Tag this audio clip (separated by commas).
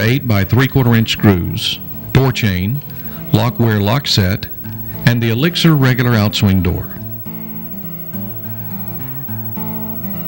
Speech, Music